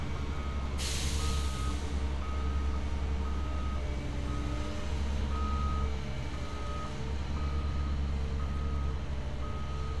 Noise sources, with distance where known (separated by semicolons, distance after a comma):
engine of unclear size; reverse beeper, far